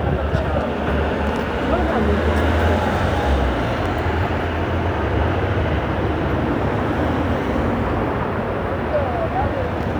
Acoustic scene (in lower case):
street